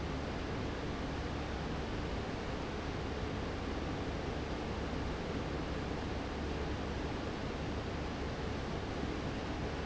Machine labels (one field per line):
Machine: fan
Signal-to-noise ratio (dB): -6 dB